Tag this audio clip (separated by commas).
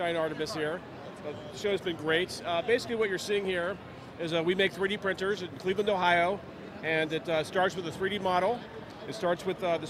Speech